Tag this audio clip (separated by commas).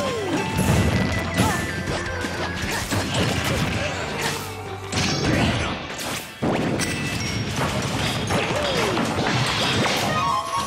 Smash